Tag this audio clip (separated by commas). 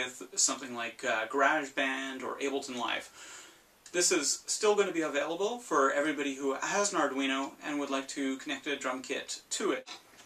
Speech